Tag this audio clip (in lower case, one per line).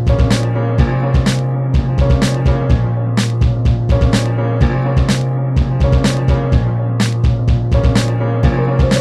music